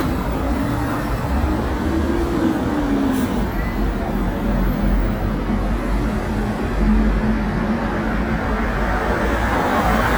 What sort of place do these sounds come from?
street